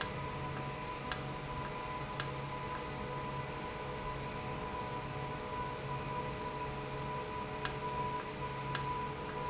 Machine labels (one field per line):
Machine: valve